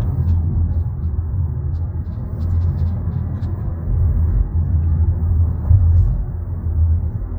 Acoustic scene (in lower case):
car